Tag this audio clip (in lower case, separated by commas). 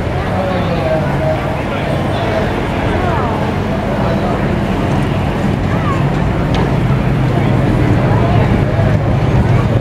air brake, speech, vehicle